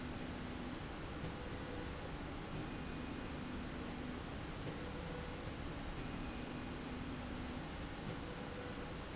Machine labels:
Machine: slide rail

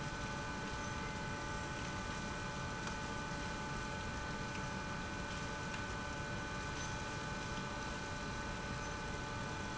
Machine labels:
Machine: pump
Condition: abnormal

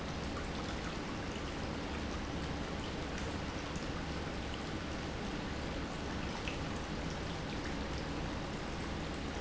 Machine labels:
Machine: pump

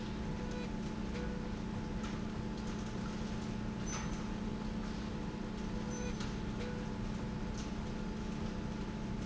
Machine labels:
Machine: slide rail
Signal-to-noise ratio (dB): -6 dB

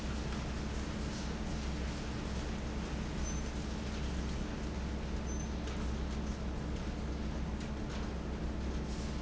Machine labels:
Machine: fan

